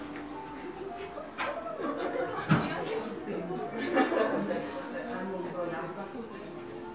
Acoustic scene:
crowded indoor space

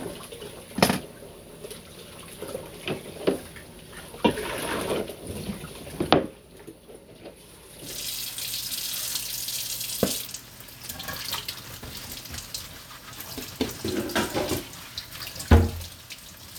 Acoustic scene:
kitchen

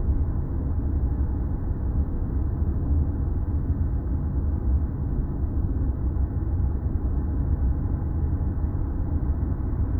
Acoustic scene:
car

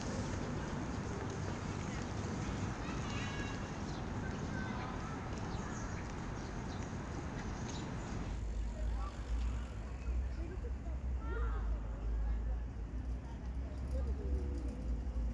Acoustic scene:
park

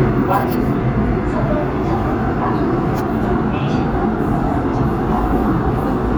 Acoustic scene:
subway train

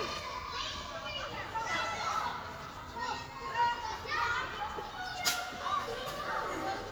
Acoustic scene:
park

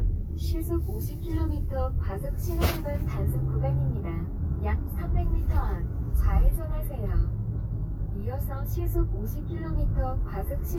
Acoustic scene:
car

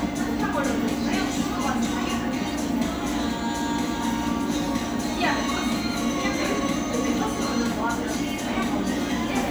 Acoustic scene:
cafe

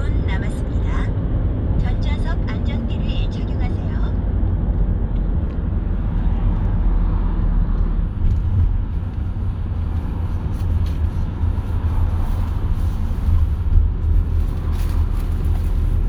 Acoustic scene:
car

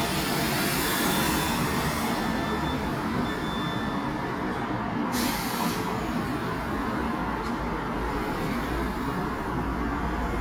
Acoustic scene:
residential area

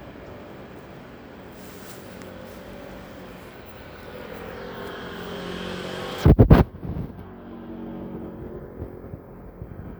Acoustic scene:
street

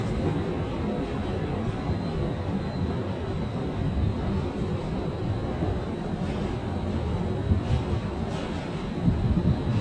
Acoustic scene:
subway station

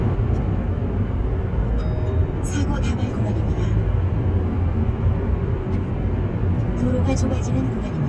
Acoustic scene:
car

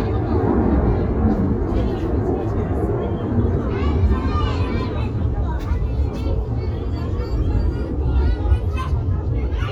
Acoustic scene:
residential area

